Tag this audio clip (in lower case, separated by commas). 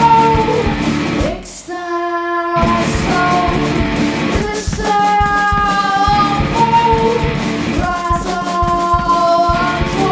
music